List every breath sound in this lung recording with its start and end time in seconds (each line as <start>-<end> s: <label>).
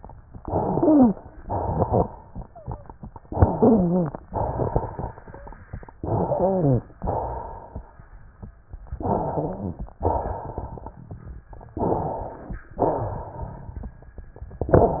0.34-1.18 s: inhalation
0.59-1.16 s: wheeze
1.42-2.26 s: exhalation
1.42-2.26 s: crackles
3.25-4.20 s: inhalation
3.53-4.10 s: wheeze
4.29-5.28 s: crackles
4.29-5.60 s: exhalation
5.28-5.58 s: wheeze
6.00-6.87 s: inhalation
6.24-6.85 s: wheeze
7.00-7.88 s: exhalation
8.99-9.96 s: inhalation
9.05-9.81 s: wheeze
10.02-10.99 s: exhalation
11.76-12.62 s: inhalation
12.81-13.30 s: wheeze
12.81-13.89 s: exhalation